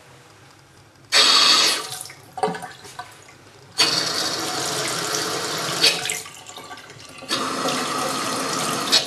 Water being turned on and off